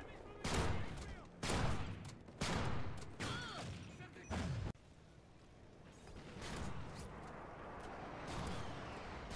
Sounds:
speech

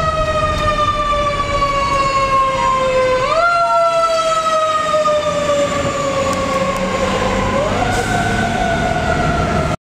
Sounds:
vehicle

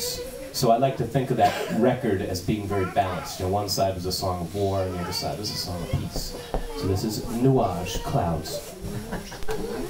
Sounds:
speech

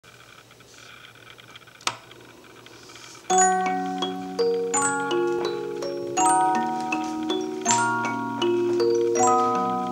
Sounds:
inside a small room
music

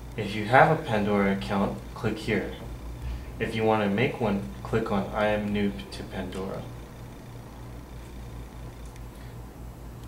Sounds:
speech

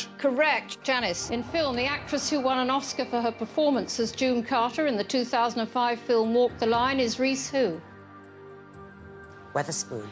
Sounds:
music
speech

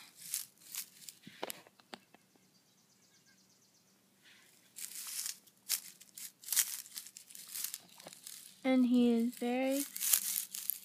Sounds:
outside, rural or natural
crinkling
speech

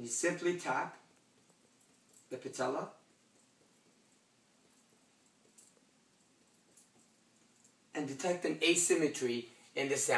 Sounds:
speech

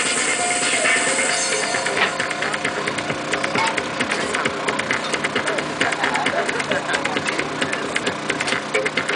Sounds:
music
speech

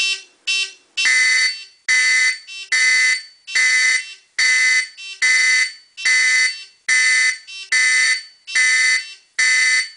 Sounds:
fire alarm

